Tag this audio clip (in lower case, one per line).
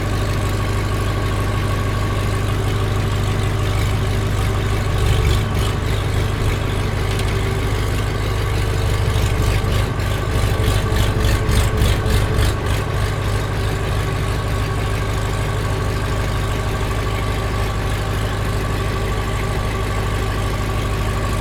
engine